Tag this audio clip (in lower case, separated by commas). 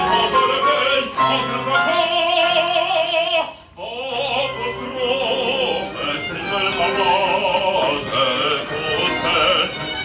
male singing, music